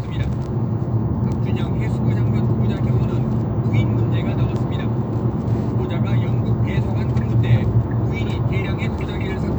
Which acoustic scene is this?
car